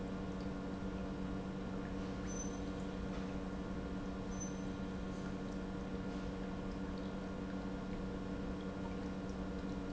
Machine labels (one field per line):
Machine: pump